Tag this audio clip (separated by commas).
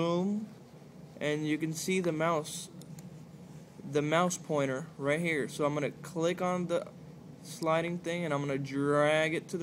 Speech